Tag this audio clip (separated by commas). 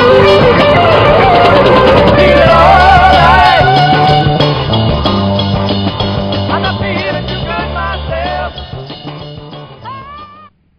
Funk, Music